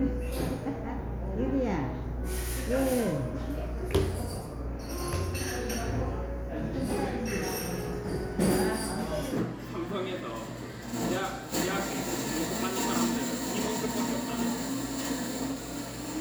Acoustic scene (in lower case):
cafe